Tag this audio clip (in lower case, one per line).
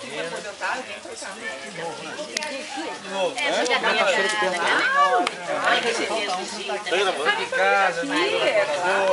speech